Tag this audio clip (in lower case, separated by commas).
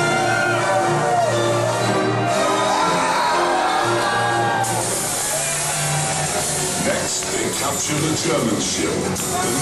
music, speech